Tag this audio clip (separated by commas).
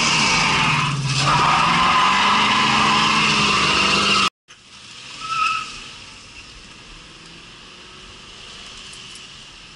skidding